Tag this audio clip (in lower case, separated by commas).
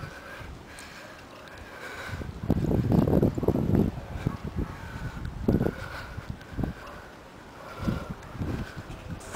engine starting, truck, vehicle